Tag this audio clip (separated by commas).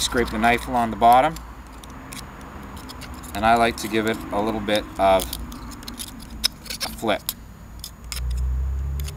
Speech